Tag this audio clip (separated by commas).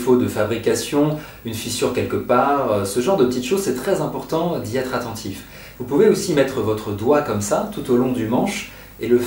Speech